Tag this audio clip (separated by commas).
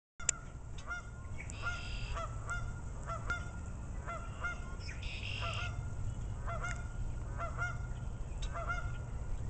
goose honking